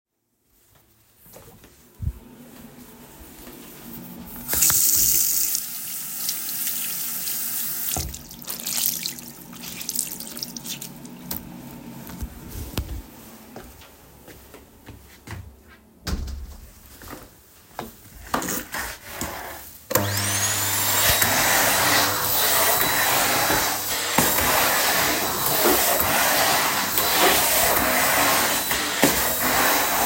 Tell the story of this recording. I turn on the water and wash the rag, then I leave the bathroom and close the door, then turn on the vacuum cleaner